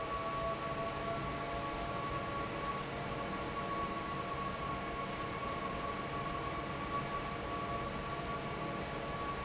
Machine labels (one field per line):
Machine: fan